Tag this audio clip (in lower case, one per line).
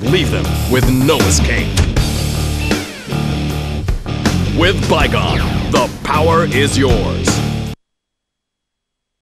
speech
music